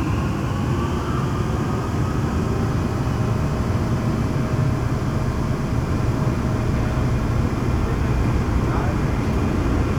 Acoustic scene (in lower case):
subway train